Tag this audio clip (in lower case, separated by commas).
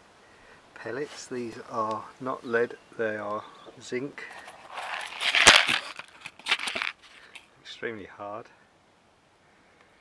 outside, urban or man-made, speech